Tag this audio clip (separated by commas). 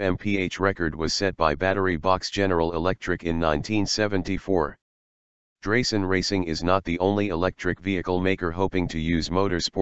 Speech